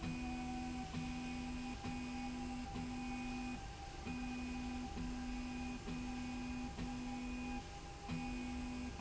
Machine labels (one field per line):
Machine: slide rail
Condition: normal